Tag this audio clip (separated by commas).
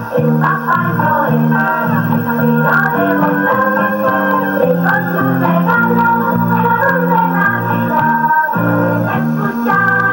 Music